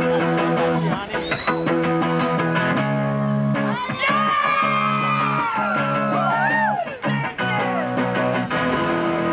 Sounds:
Music, Speech

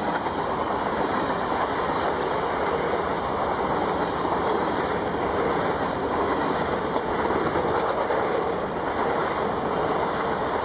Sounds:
Rail transport, Train, Vehicle, train wagon

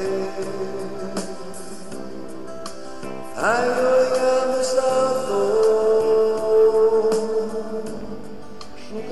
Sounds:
Music

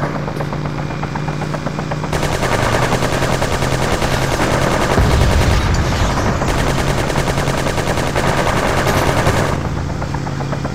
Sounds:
Car, Gunshot, Vehicle

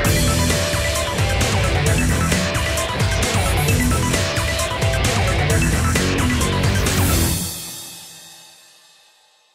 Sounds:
Music

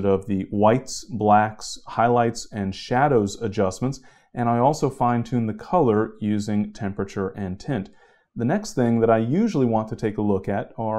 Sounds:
Speech

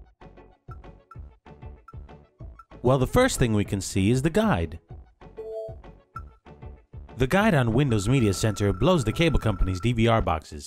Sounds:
Speech, Radio, Music

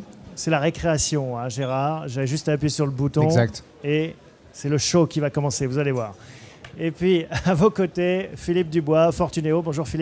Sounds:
Speech

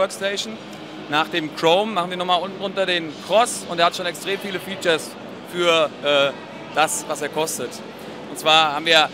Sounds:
Speech

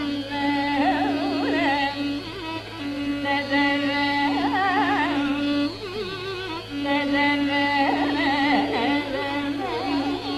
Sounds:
Music of Asia, Music, Carnatic music, Musical instrument, Classical music

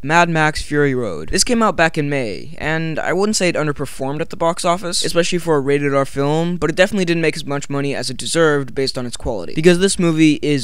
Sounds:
Speech

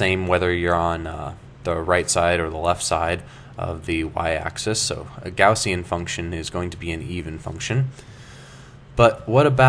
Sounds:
Speech

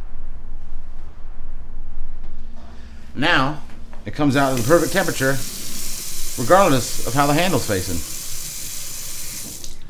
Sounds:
Water tap, Sink (filling or washing), Water

